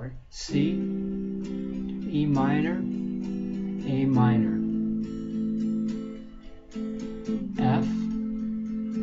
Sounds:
Musical instrument, Music, Speech, Guitar, Plucked string instrument, Strum

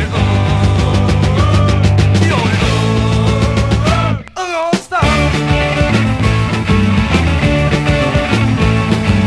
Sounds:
Music

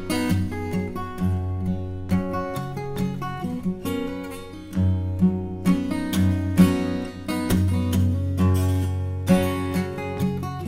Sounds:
Musical instrument, Plucked string instrument, Acoustic guitar, Guitar, Music, Strum

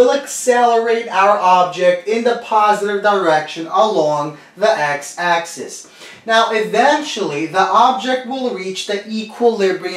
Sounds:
Speech

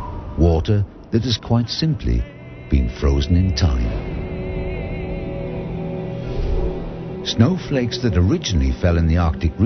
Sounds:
Speech

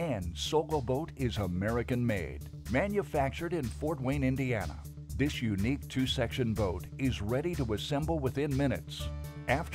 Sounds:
Speech, Music

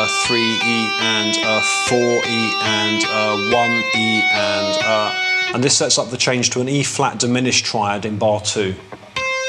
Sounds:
tapping guitar

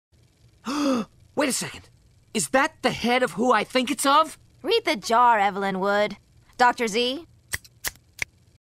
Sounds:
Speech

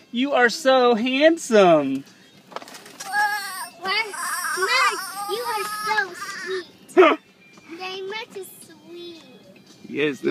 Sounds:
Speech

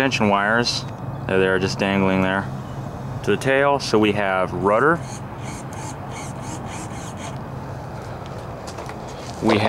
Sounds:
Speech

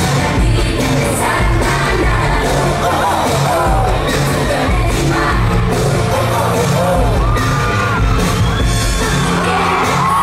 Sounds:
Singing, Music

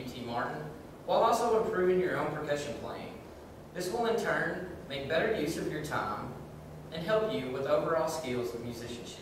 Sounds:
Speech

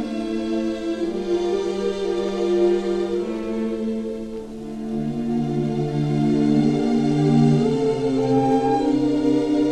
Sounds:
Ambient music, Music

